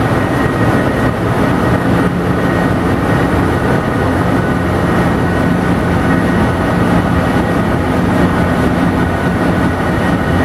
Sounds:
Heavy engine (low frequency), Engine

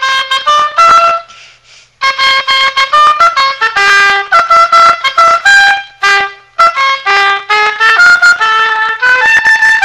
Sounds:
playing oboe

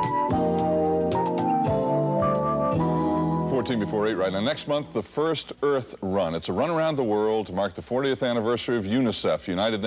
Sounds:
Music, Speech

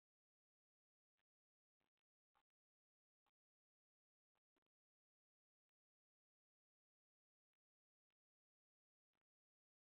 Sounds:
Silence

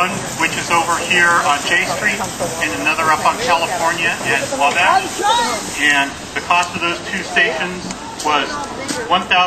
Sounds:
Engine, Medium engine (mid frequency), Speech, Idling

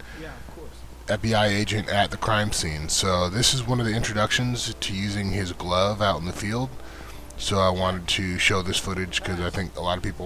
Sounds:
Speech

